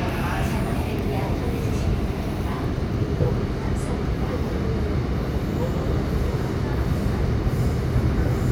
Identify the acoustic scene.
subway train